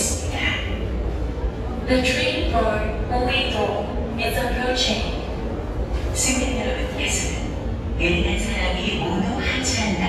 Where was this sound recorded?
in a subway station